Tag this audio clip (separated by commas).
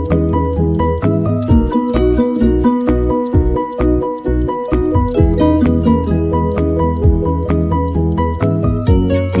Music